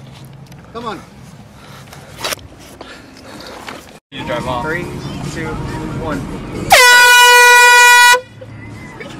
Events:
0.0s-3.9s: mechanisms
2.5s-3.8s: breathing
3.5s-3.8s: generic impact sounds
4.1s-6.2s: singing
4.1s-9.1s: music
4.1s-9.1s: car
5.3s-6.2s: man speaking
6.7s-8.2s: truck horn
8.5s-9.1s: laughter

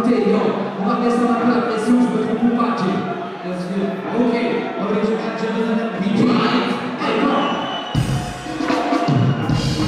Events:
0.0s-0.6s: male speech
0.0s-9.8s: crowd
0.8s-3.0s: male speech
3.4s-6.8s: male speech
7.0s-7.9s: male speech
7.2s-8.3s: whistling
7.9s-9.8s: music

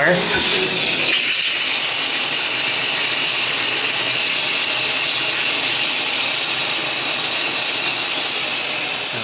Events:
0.0s-0.4s: man speaking
0.0s-9.2s: shower
9.1s-9.2s: man speaking

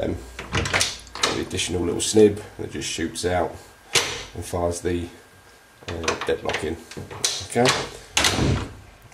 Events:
0.0s-9.1s: mechanisms
2.1s-2.2s: tick
2.3s-2.5s: breathing
3.5s-3.7s: surface contact
7.6s-7.8s: generic impact sounds
8.2s-8.6s: door

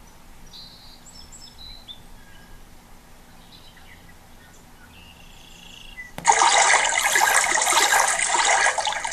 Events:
0.0s-2.6s: bird vocalization
0.0s-9.1s: mechanisms
3.2s-6.2s: bird vocalization
6.2s-9.1s: water

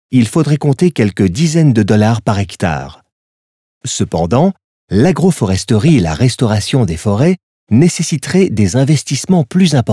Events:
0.1s-3.1s: male speech
3.8s-4.6s: male speech
4.9s-7.3s: male speech
7.6s-9.9s: male speech

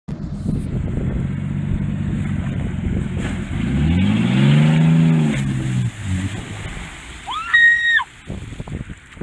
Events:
0.0s-9.2s: medium engine (mid frequency)
0.1s-1.1s: wind noise (microphone)
0.1s-9.2s: wind
2.7s-3.0s: wind noise (microphone)
3.1s-5.9s: revving
5.3s-9.2s: splatter
7.2s-8.1s: screaming
8.2s-9.0s: wind noise (microphone)
9.2s-9.2s: wind noise (microphone)

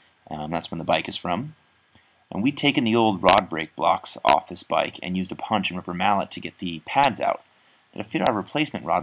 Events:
0.0s-9.0s: mechanisms
0.2s-1.5s: man speaking
1.8s-2.1s: breathing
2.3s-7.4s: man speaking
7.0s-7.1s: tick
7.4s-7.5s: tick
7.6s-7.8s: breathing
7.9s-9.0s: man speaking

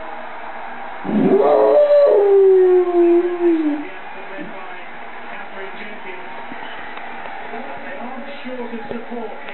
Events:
0.0s-9.5s: background noise
0.0s-9.5s: television
1.1s-3.9s: howl
3.0s-3.8s: man speaking
3.8s-4.5s: man speaking
4.5s-5.0s: man speaking
5.2s-6.2s: man speaking
6.9s-7.0s: generic impact sounds
7.2s-7.3s: generic impact sounds
7.5s-9.5s: man speaking
7.7s-7.8s: generic impact sounds
8.9s-9.0s: generic impact sounds
9.4s-9.5s: generic impact sounds

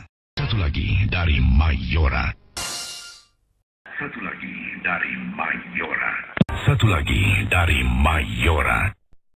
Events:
0.0s-0.1s: generic impact sounds
0.4s-2.4s: male speech
2.3s-3.6s: background noise
2.6s-3.4s: sound effect
3.9s-6.3s: male speech
6.3s-6.4s: generic impact sounds
6.5s-9.0s: male speech
9.1s-9.2s: generic impact sounds

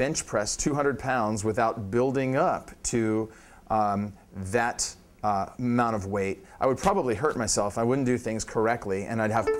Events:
0.0s-1.7s: male speech
0.0s-9.5s: background noise
1.9s-2.7s: male speech
2.8s-3.2s: male speech
3.3s-3.6s: breathing
3.7s-4.1s: male speech
4.3s-4.9s: male speech
5.2s-5.4s: male speech
5.6s-6.3s: male speech
6.4s-6.5s: breathing
6.6s-9.5s: male speech
7.3s-7.4s: surface contact
9.4s-9.5s: music

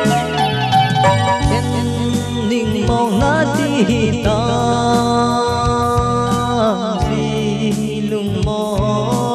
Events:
0.0s-9.3s: music
1.5s-9.3s: male singing

